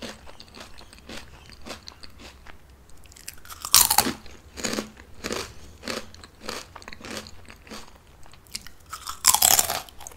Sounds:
people eating crisps

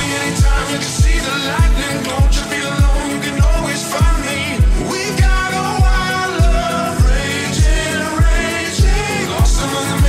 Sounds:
Music

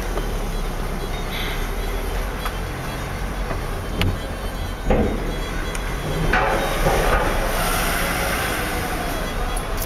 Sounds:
Car, Music, Vehicle

